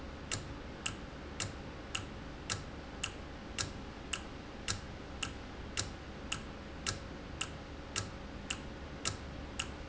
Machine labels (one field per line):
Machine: valve